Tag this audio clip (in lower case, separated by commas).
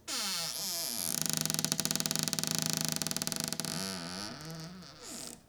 domestic sounds, door, cupboard open or close, squeak